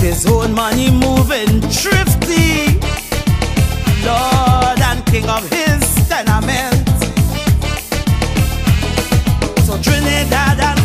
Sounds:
male singing
music

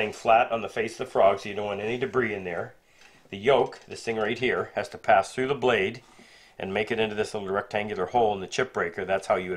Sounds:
planing timber

